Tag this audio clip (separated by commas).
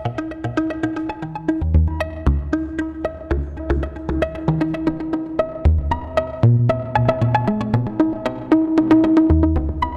Music